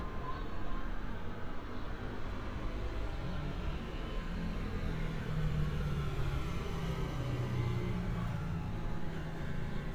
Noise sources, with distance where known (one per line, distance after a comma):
medium-sounding engine
unidentified human voice